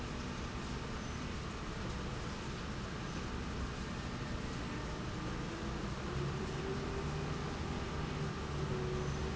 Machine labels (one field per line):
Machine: slide rail